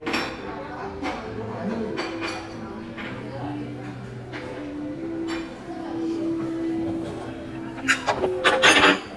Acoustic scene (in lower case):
crowded indoor space